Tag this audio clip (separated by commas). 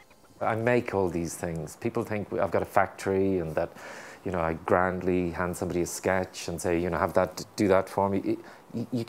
Speech